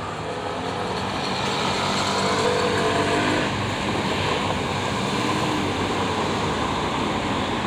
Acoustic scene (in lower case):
street